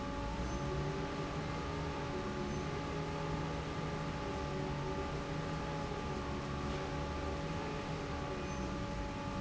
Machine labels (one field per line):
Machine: fan